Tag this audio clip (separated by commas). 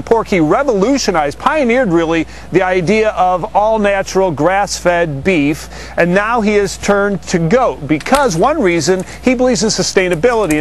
Speech